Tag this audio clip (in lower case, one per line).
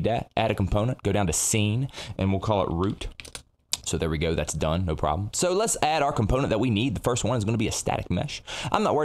speech